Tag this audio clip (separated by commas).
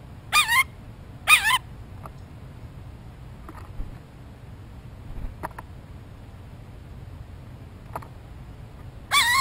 bird squawking